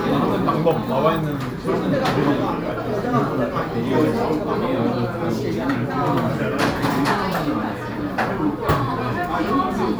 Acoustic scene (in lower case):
restaurant